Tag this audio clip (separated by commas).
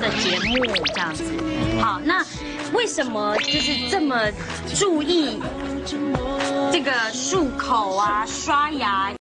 Speech, Music